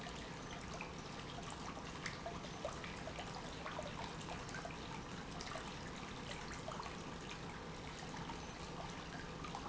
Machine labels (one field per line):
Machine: pump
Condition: normal